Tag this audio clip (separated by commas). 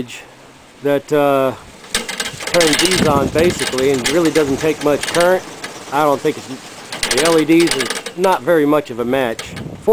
Speech